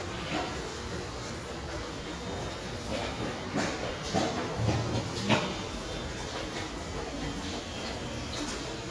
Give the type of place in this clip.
subway station